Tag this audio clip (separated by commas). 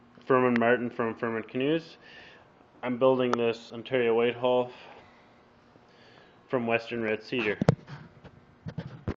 Speech